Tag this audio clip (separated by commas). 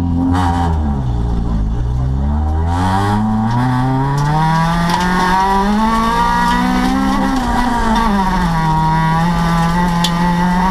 Car, Vehicle, Motor vehicle (road)